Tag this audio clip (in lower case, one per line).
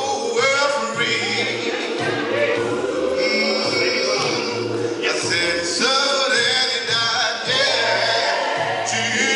speech
music
male singing
choir